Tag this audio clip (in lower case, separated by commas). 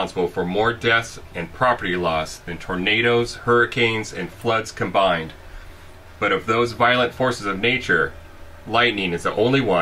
speech